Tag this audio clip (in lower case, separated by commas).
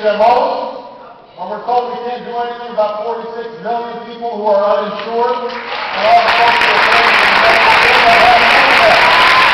male speech, narration, speech